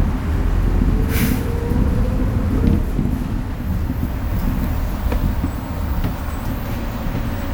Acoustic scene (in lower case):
bus